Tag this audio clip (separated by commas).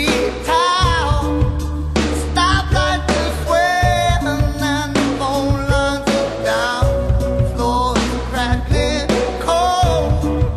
Music, Independent music